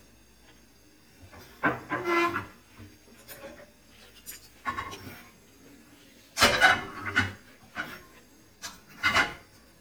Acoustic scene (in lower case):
kitchen